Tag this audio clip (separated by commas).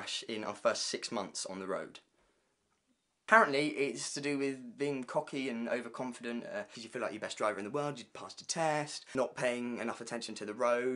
Speech